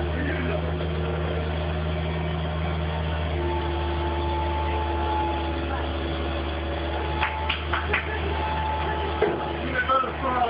A truck or large vehicle moving around